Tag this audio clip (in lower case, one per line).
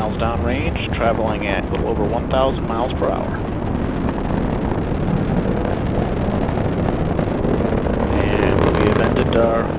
missile launch